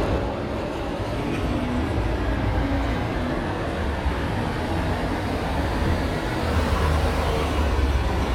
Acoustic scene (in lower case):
street